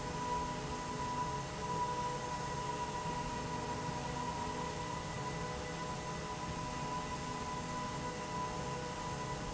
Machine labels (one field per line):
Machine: slide rail